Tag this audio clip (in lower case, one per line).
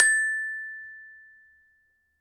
music
glockenspiel
musical instrument
percussion
mallet percussion